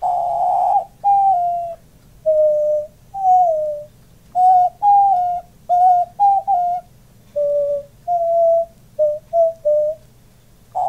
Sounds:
dove, Coo, Bird, bird song

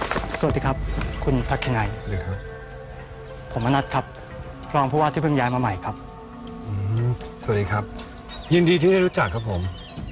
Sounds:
Speech, Music

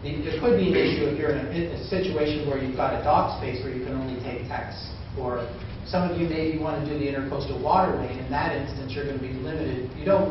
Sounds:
Speech

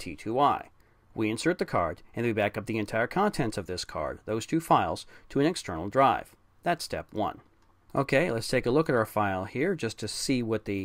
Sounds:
Speech

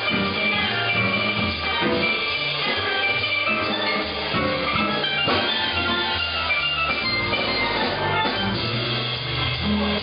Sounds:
Drum, Drum kit, Percussion, Musical instrument, Music, Snare drum, Steelpan

